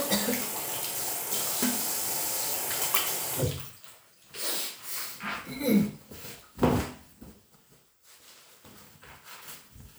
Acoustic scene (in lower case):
restroom